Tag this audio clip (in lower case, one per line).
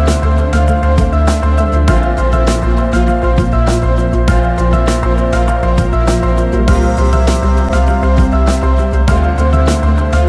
music